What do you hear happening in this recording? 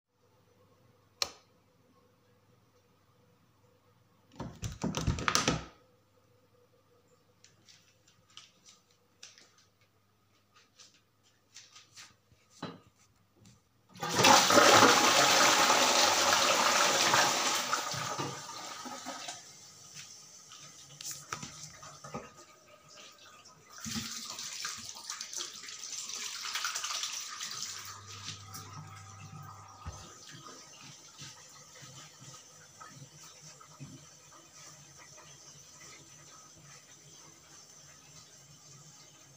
I turned on the light, opened the door, turned on the toilet flush, washed hands,